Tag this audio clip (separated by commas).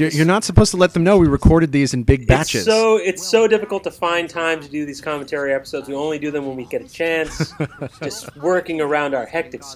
Speech